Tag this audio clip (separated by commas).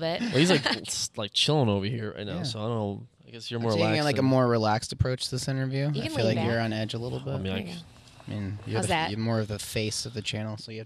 Speech